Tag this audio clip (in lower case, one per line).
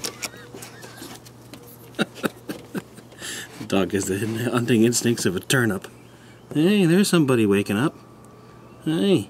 mouse pattering
patter
rats